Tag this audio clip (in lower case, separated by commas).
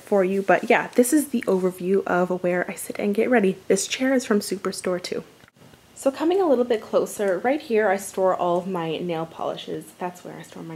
speech